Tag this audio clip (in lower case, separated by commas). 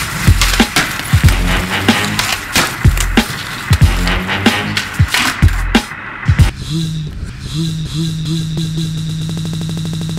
music, skateboard